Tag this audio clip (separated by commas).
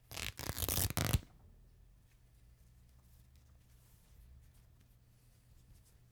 Tearing